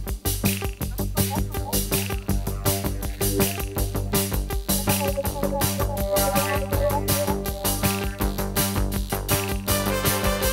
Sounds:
Drum, Drum kit, Music, Snare drum, Hi-hat, Musical instrument

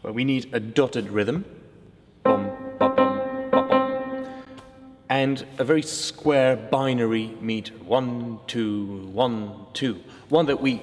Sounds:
Music, Speech

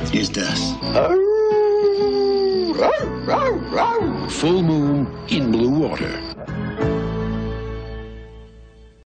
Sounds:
Speech, Music

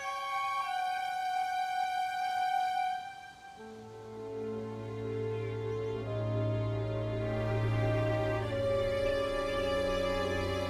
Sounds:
Music, Theme music

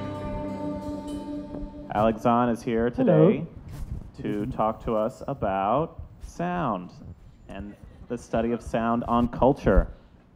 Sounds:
Speech

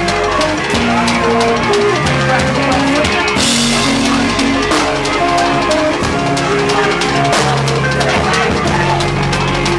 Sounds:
Speech, Music

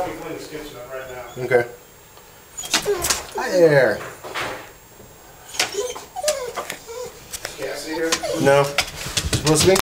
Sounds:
Animal, Speech, pets, Door

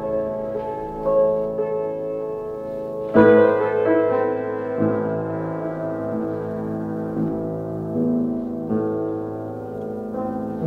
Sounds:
Music

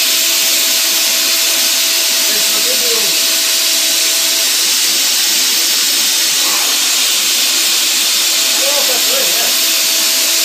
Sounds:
Speech

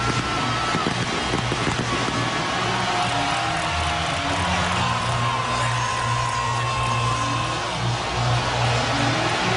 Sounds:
Music, Speech

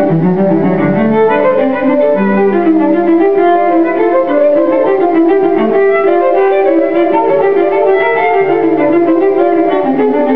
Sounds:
fiddle, Music, Cello, Musical instrument

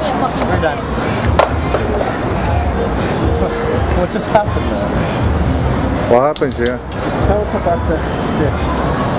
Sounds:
Speech, Music

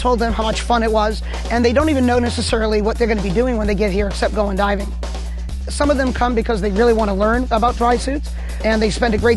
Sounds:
Music, Speech

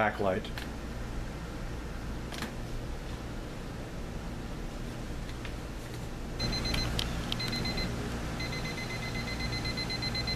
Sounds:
Buzzer, Speech

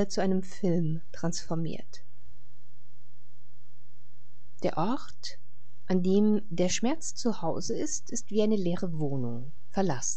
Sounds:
Speech

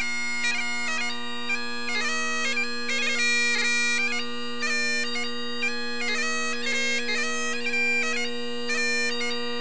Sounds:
playing bagpipes

